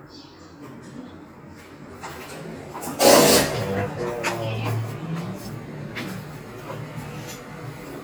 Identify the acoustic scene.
elevator